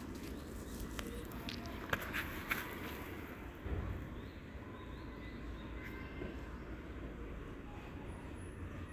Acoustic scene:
residential area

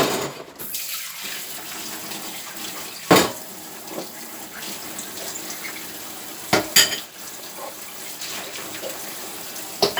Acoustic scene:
kitchen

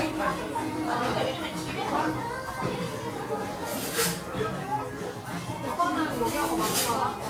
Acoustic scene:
restaurant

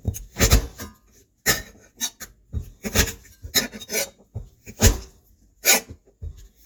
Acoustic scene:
kitchen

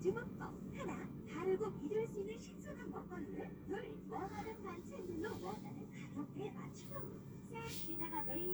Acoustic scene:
car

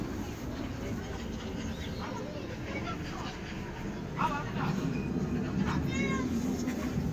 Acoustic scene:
park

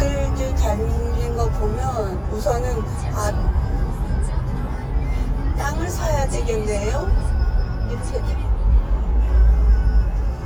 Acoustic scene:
car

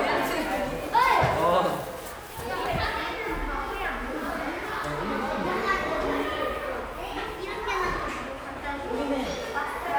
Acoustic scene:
crowded indoor space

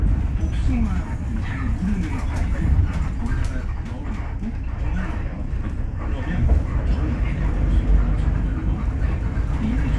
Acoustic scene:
bus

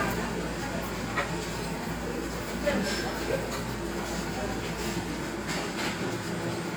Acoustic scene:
cafe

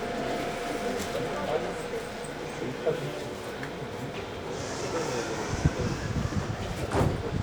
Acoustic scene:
subway train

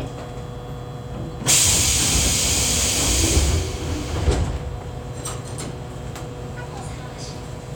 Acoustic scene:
subway train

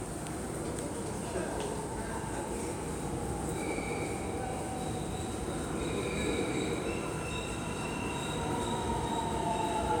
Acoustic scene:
subway station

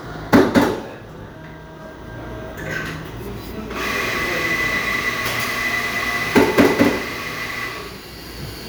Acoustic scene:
cafe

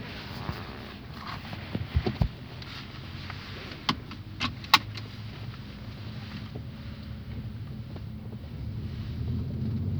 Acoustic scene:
car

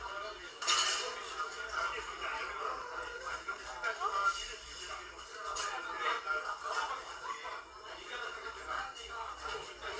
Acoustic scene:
crowded indoor space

